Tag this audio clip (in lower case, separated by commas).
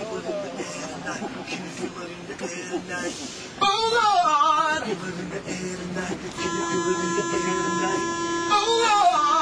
male singing, train, rapping, rail transport, vehicle